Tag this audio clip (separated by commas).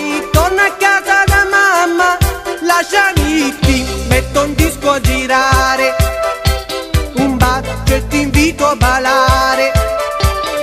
Guitar, Music